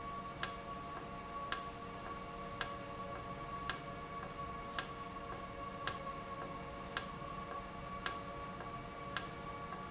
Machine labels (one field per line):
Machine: valve